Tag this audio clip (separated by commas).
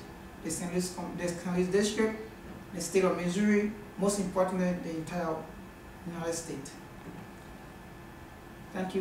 Speech, monologue, man speaking